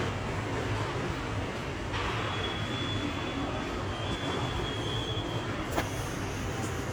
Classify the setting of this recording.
subway station